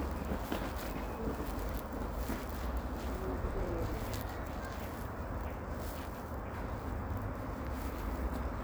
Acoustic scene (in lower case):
residential area